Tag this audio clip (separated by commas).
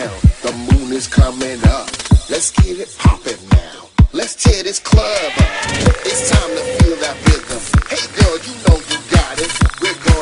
Music